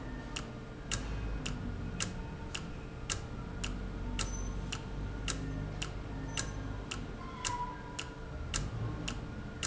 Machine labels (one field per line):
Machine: valve